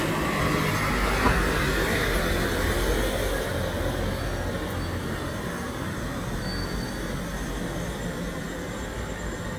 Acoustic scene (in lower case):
residential area